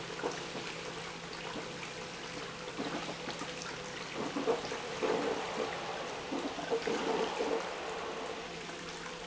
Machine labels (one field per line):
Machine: pump